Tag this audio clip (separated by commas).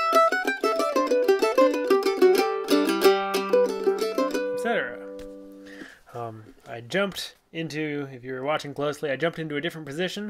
playing mandolin